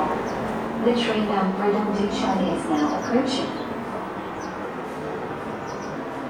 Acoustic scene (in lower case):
subway station